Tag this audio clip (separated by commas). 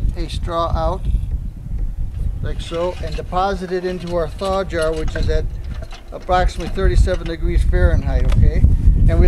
Speech